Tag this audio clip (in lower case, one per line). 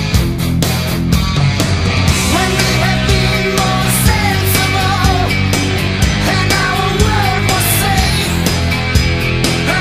music